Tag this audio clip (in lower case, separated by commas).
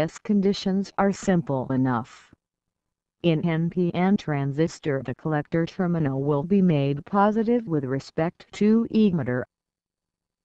speech synthesizer